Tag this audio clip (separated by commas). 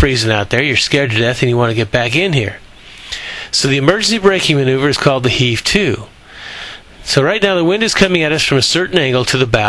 sailing ship, Speech, Vehicle